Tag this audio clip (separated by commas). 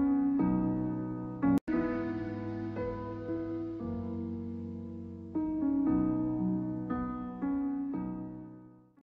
Music